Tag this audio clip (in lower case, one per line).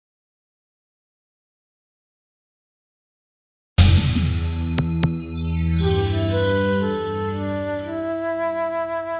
flute